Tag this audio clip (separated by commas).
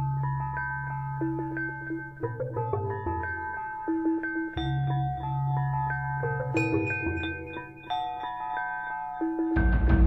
Music